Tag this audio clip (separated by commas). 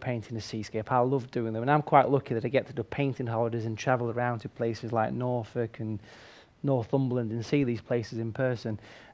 Speech